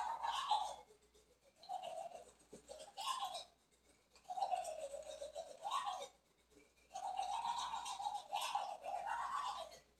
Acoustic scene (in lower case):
restroom